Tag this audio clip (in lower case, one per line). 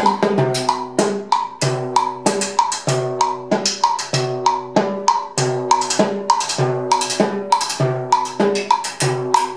playing timbales